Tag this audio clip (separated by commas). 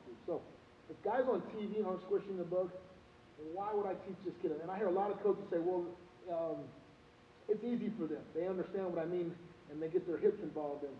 Speech